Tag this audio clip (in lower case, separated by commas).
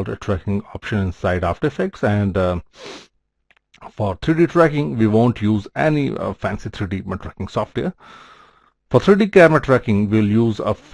speech